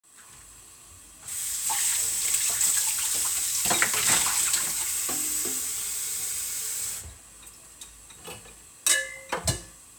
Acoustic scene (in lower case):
kitchen